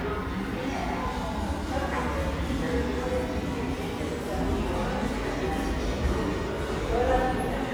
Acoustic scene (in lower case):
subway station